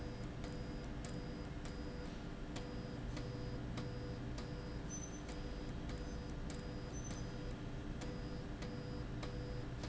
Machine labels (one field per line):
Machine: slide rail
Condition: abnormal